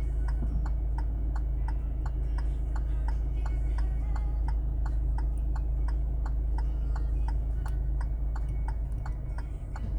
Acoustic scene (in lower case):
car